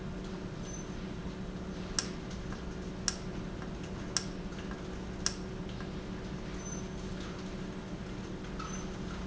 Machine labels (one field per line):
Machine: valve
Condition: normal